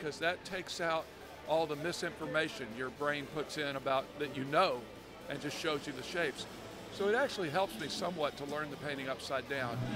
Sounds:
speech

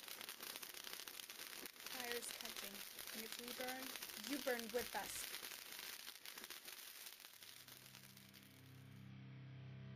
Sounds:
speech

